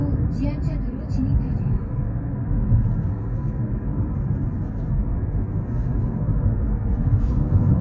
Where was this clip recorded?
in a car